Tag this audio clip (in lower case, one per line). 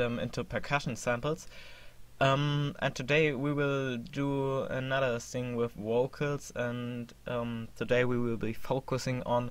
monologue
man speaking
speech